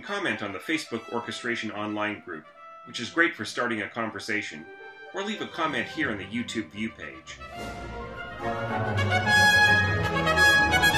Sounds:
harpsichord, speech, music

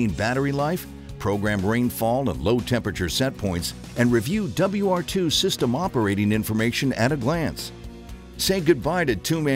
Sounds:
music, speech

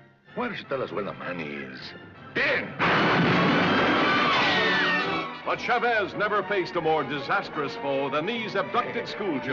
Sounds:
music, speech

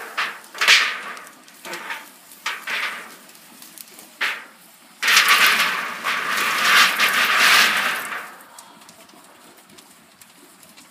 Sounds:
fire, wind

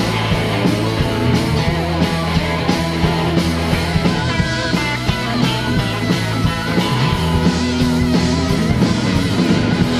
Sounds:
psychedelic rock, music, rock music, punk rock

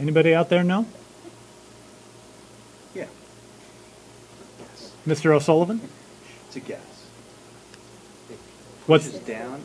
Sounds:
speech, inside a small room

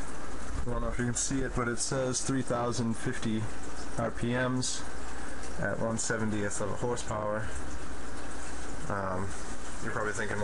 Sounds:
speech

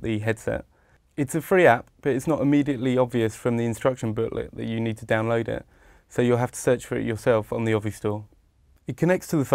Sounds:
speech

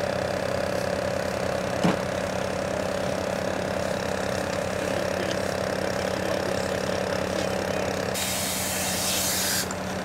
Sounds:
outside, urban or man-made, speech

